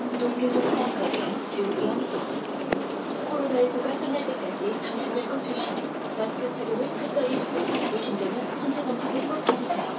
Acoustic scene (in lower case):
bus